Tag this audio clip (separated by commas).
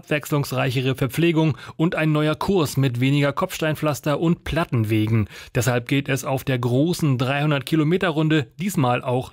Speech